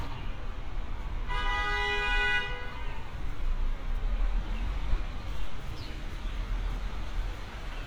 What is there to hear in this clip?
car horn